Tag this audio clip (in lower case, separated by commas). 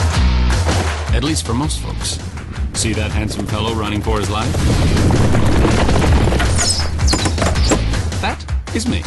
speech, music